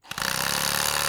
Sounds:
tools

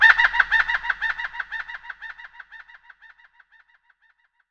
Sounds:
bird vocalization
animal
bird
wild animals

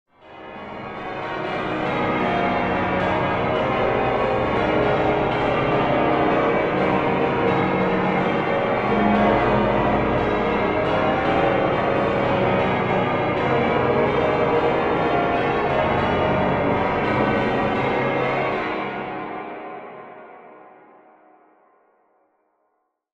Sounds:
bell
church bell

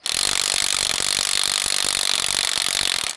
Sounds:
tools

